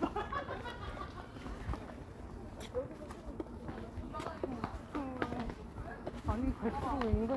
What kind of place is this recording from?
park